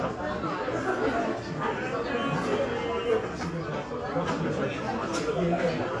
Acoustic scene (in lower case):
crowded indoor space